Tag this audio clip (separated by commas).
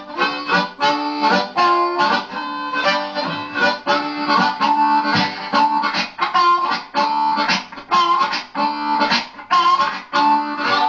Music